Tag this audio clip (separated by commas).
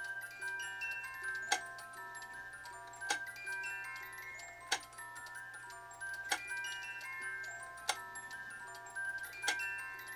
Tick